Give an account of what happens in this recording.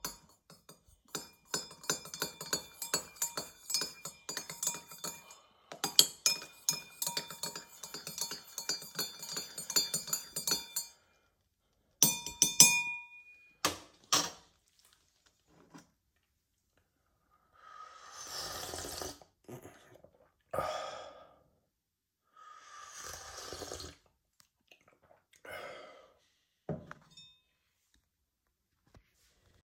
I stirred my tea with a spoon and took a enjoyable sip.